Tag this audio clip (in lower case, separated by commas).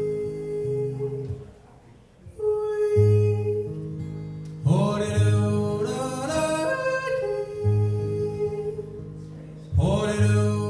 music